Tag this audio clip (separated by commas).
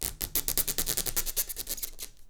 Squeak